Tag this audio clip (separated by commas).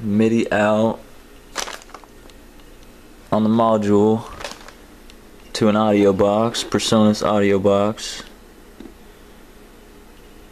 Speech